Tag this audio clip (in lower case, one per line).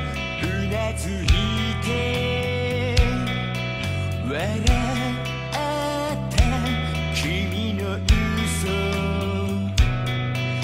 music